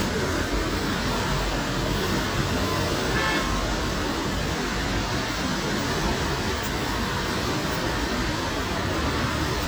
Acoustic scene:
street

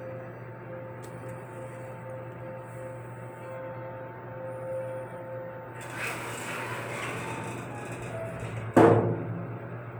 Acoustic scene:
elevator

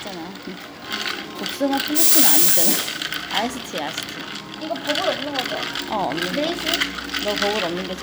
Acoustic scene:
cafe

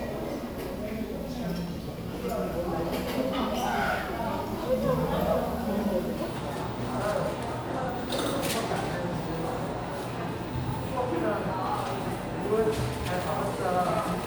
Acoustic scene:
crowded indoor space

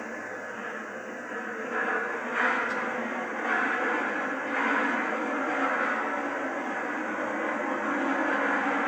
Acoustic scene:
subway train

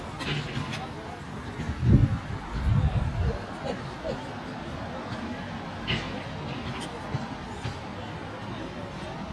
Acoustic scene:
residential area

